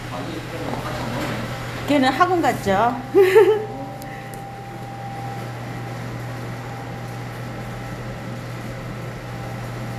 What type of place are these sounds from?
cafe